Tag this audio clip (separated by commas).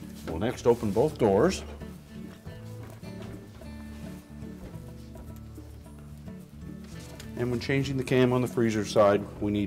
Music, Speech